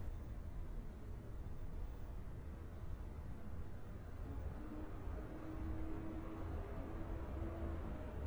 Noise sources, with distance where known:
large-sounding engine, far

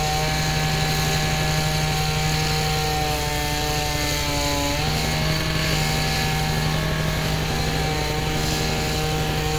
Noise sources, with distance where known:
small or medium rotating saw, near

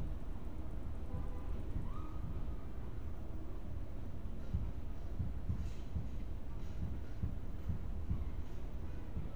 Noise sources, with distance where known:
car horn, far

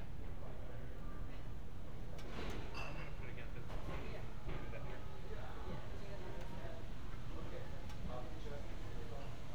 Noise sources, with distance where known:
background noise

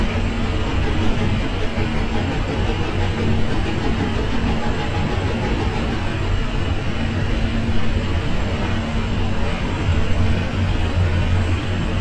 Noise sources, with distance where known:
large-sounding engine, near

